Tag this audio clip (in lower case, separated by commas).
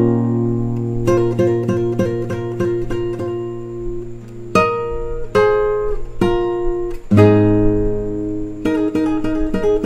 musical instrument, music, guitar, strum, acoustic guitar, playing acoustic guitar, plucked string instrument